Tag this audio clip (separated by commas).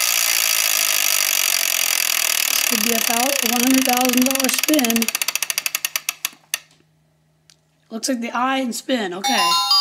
Chainsaw